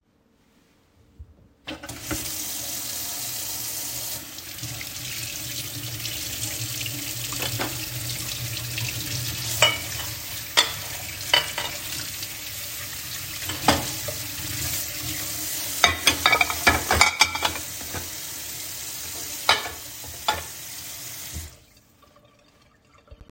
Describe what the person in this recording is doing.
I turned on the kitchen tap and began rinsing dishes under the running water. I clattered some cutlery and plates together while washing them. After finishing I turned off the tap.